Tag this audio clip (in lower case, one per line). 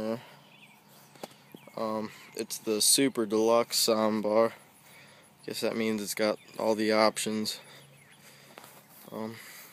speech